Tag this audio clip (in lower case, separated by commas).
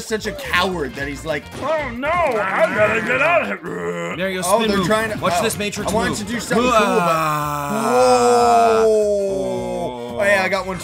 music, speech